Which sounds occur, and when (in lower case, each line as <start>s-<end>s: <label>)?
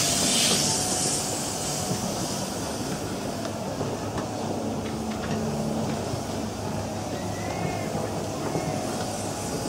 0.0s-9.6s: boat
0.0s-9.6s: wind
0.5s-0.6s: tick
1.2s-1.3s: tick
1.9s-1.9s: tick
2.2s-2.6s: generic impact sounds
4.3s-5.1s: generic impact sounds
5.4s-5.8s: generic impact sounds
7.2s-7.2s: tick
7.6s-7.9s: generic impact sounds